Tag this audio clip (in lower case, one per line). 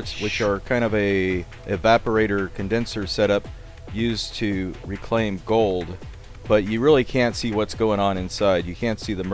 music
speech